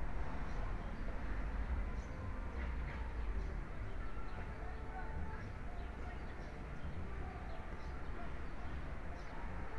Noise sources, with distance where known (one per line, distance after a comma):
engine of unclear size
unidentified human voice, near